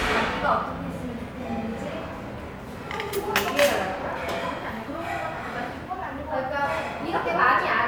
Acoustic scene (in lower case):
restaurant